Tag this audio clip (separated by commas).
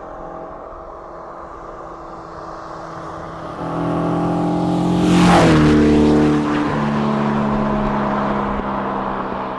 car passing by